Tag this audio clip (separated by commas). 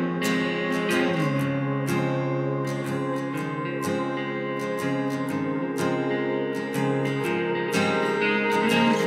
Music